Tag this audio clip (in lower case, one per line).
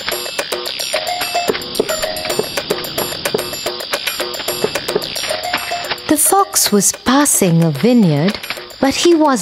speech
music for children
music